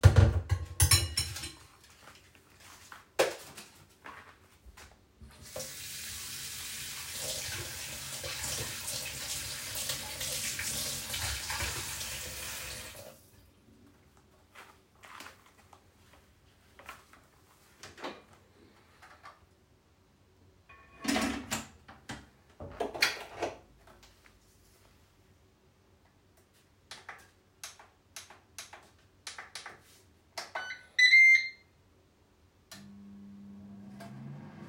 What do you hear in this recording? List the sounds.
cutlery and dishes, footsteps, light switch, running water, microwave